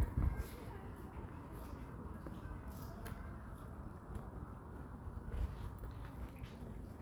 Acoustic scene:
park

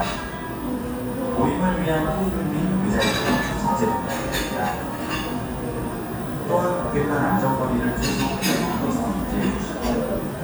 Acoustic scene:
cafe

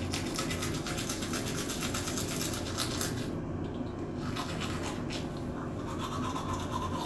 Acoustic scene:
restroom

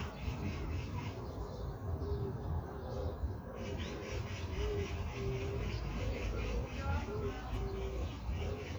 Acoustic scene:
park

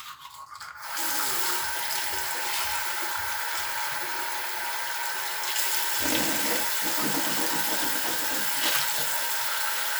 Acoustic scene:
restroom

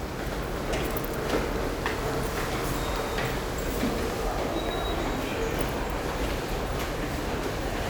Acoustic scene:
subway station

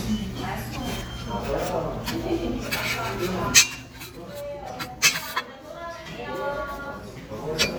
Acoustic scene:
restaurant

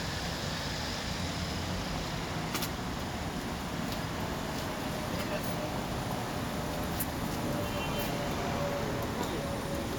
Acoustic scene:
street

